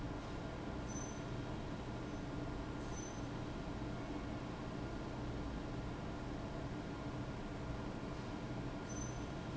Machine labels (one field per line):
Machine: fan